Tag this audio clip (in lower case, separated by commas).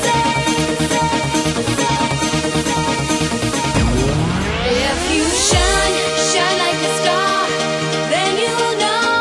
music, exciting music